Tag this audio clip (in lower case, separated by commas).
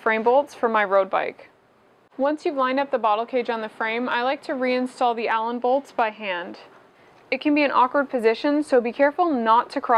speech